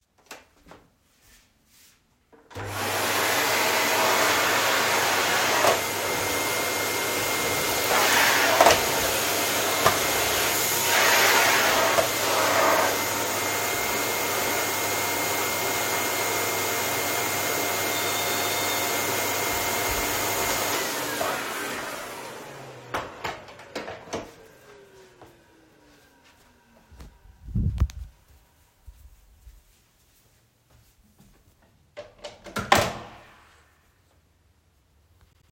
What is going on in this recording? I started vacuuming the living room. The doorbell rang, I stopped vacuuming, walked to the door and opened it.